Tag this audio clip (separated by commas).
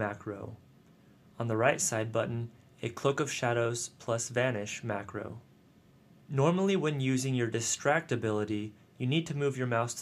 Speech